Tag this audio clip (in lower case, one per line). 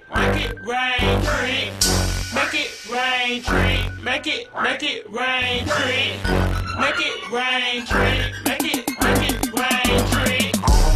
music
jazz
dance music